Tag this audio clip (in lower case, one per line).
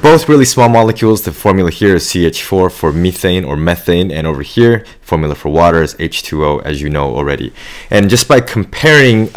speech